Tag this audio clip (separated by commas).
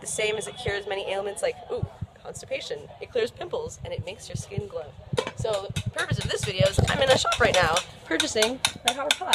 Speech